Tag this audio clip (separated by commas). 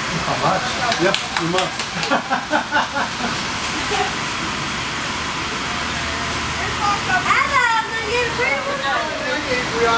Speech